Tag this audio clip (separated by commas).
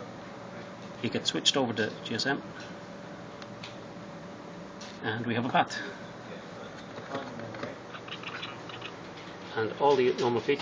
Speech, inside a small room